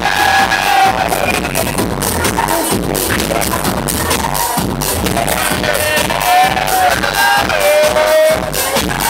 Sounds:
Music

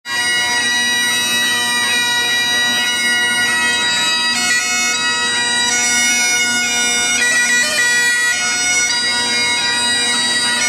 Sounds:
playing bagpipes

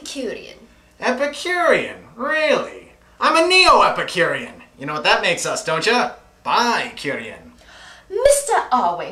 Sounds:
Speech

